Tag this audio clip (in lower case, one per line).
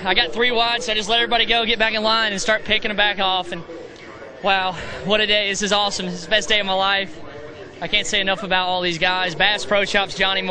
speech